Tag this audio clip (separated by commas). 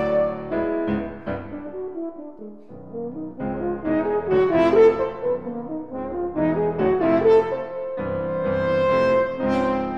playing french horn